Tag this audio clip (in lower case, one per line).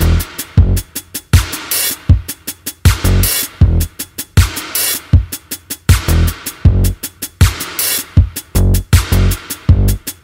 sampler
music